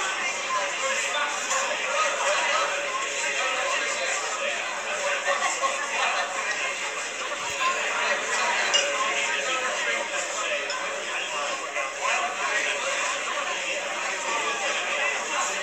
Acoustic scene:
crowded indoor space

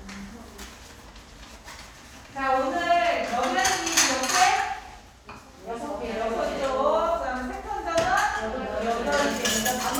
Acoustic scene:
crowded indoor space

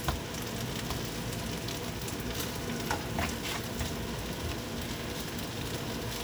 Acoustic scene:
kitchen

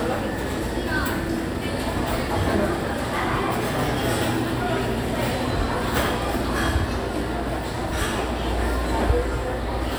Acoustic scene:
crowded indoor space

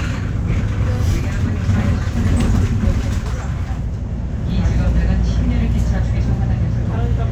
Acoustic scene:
bus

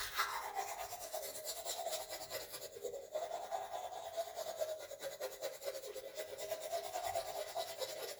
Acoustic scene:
restroom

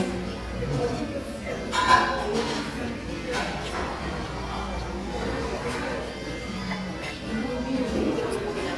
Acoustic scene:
crowded indoor space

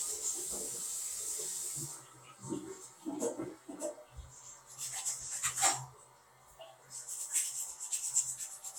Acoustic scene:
restroom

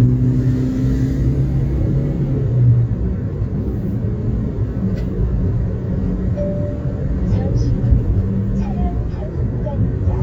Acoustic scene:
car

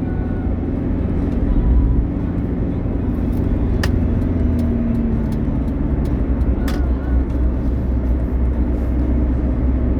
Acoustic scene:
car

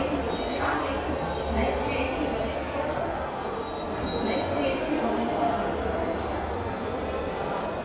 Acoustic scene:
subway station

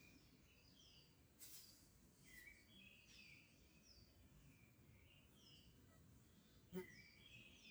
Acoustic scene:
park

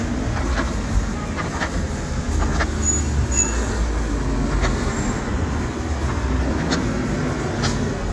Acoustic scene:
street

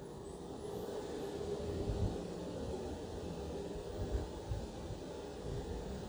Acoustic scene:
elevator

